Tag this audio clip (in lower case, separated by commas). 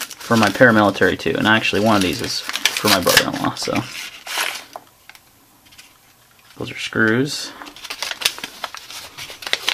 speech, inside a small room